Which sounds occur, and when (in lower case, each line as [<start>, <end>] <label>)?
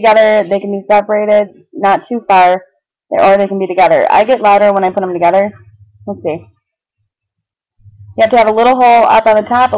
[0.00, 1.50] female speech
[0.00, 9.75] background noise
[1.76, 2.61] female speech
[3.10, 5.55] female speech
[6.07, 6.57] female speech
[6.97, 7.55] generic impact sounds
[7.82, 8.20] generic impact sounds
[8.20, 9.75] female speech